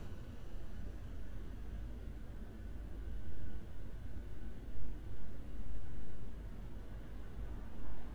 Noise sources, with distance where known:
background noise

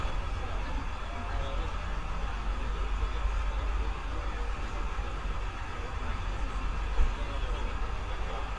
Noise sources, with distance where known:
engine of unclear size

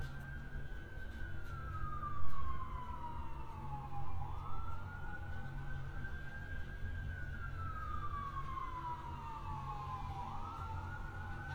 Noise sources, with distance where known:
siren, far

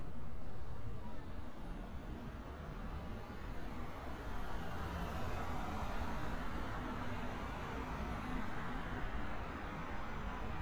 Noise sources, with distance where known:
engine of unclear size

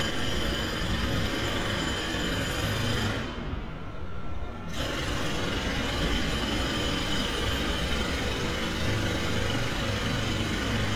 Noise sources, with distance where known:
jackhammer

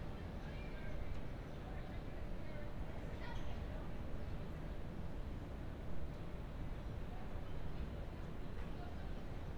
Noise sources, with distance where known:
background noise

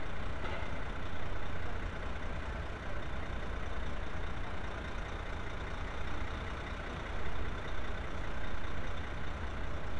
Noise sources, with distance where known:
large-sounding engine, near

